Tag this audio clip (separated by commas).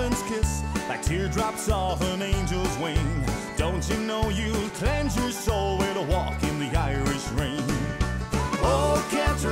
Music